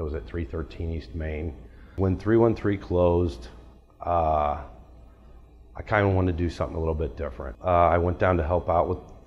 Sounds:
speech

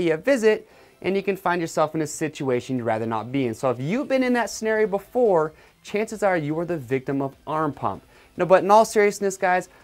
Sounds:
speech, music

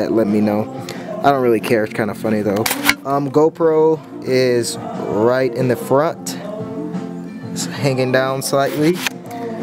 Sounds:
music, speech

